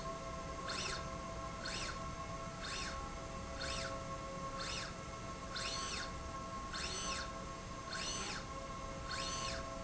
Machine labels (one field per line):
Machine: slide rail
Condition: normal